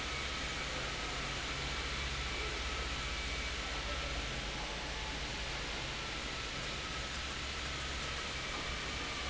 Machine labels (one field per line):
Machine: fan